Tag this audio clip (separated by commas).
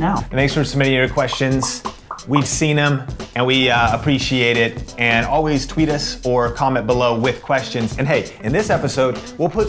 Speech, Music